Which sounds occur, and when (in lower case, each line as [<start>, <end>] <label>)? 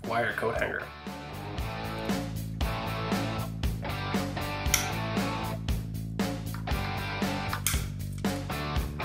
[0.01, 9.04] music
[0.01, 1.07] man speaking